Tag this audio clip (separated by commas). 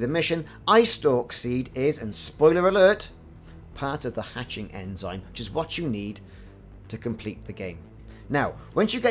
striking pool